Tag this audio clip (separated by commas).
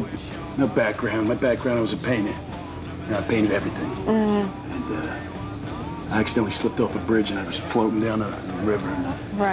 Speech, Music